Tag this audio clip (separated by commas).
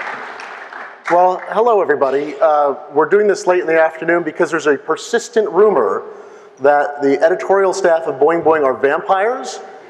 Speech